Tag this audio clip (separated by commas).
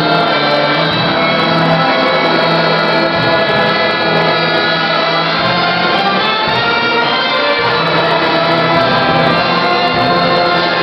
Music, Christmas music